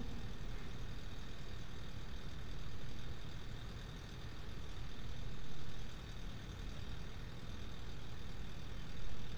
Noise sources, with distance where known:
engine of unclear size

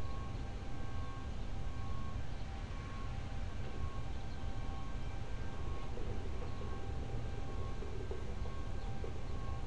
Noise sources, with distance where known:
reverse beeper, far

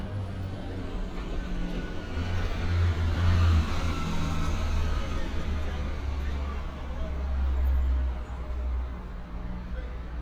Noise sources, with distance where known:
large-sounding engine, near

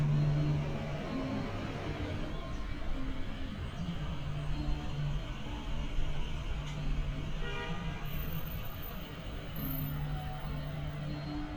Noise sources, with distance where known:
large-sounding engine, near; car horn, near; music from an unclear source

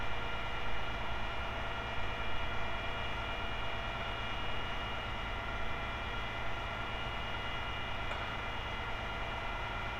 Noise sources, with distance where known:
engine of unclear size, far

